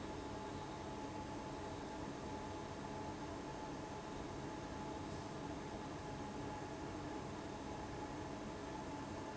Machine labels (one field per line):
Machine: fan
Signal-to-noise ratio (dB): 6 dB